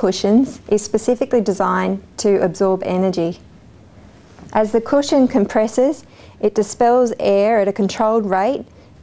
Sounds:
speech

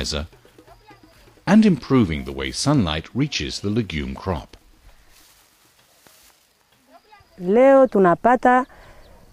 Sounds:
narration
speech

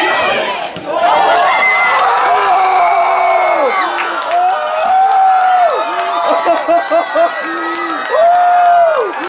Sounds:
speech

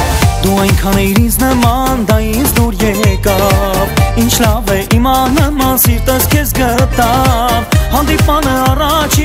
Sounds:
dance music
music
new-age music
jazz
rhythm and blues

